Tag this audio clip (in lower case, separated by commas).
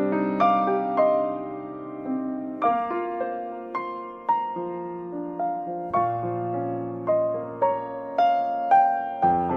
music